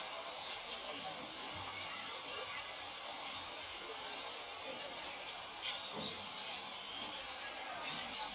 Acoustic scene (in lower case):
park